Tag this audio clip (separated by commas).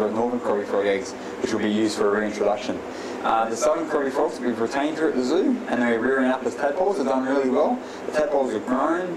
Speech